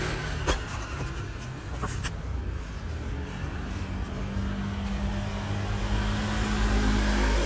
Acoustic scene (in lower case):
street